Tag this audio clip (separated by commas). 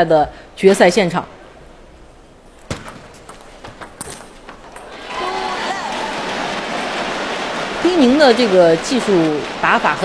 Speech